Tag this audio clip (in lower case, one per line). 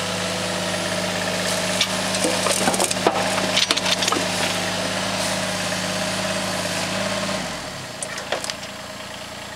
vehicle